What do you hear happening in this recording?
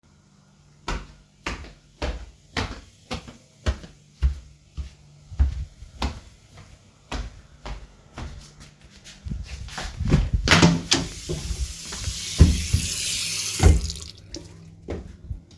I walked in the living room, heard water running, dashed to the bathroom, opened the door and turned the water off.